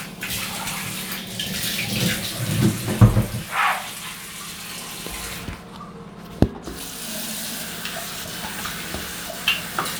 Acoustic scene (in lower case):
restroom